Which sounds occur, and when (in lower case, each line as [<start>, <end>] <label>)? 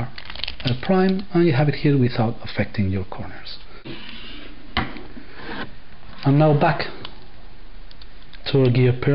[0.00, 9.14] background noise
[0.09, 0.88] generic impact sounds
[0.63, 3.57] male speech
[1.01, 1.29] generic impact sounds
[4.68, 4.94] generic impact sounds
[5.33, 5.69] generic impact sounds
[6.19, 7.04] male speech
[6.94, 7.15] generic impact sounds
[7.86, 8.09] generic impact sounds
[8.28, 8.48] generic impact sounds
[8.49, 9.14] male speech